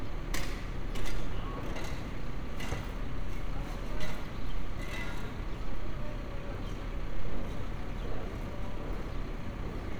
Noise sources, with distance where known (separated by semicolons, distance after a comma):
large-sounding engine